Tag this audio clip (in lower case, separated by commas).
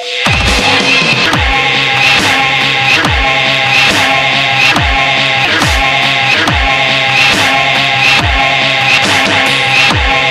electronic music, dubstep, music